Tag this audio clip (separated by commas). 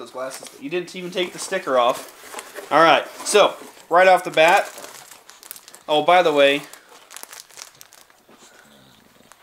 crinkling, Speech